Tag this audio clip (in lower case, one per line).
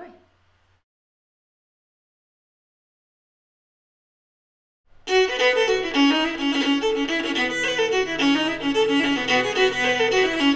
music
musical instrument
violin
speech
bowed string instrument